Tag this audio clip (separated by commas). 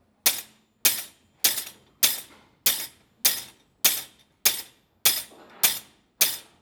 Tools